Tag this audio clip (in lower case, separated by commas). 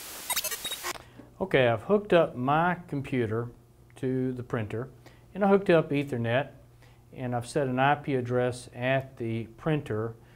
speech